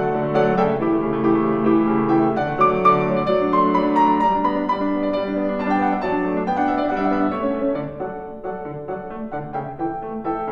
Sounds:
piano, playing piano, keyboard (musical)

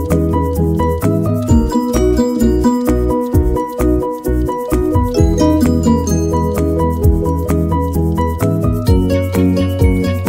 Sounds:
music

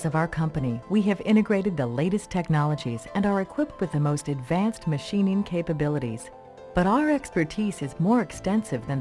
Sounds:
music, speech

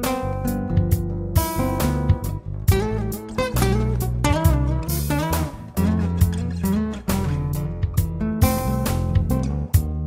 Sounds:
playing acoustic guitar, music, acoustic guitar, musical instrument, soul music, jazz, guitar, rhythm and blues

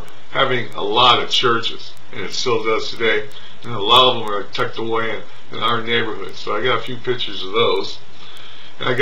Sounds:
speech

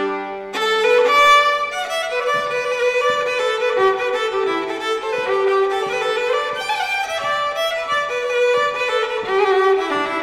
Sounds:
fiddle, musical instrument, music

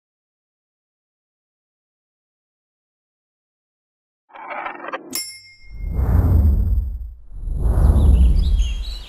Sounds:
silence

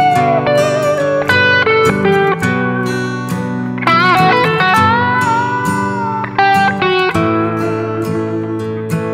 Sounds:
music, guitar

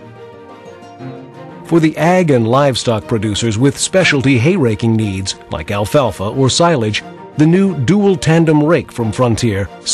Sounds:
music, speech

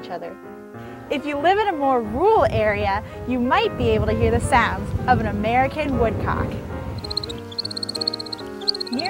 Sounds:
music, speech

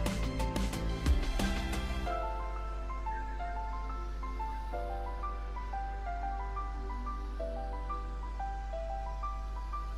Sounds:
music

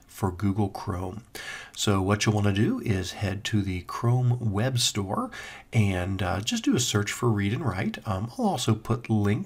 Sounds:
monologue, speech synthesizer, speech

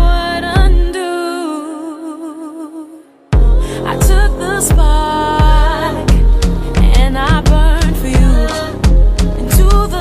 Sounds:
music

